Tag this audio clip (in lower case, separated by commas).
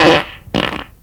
fart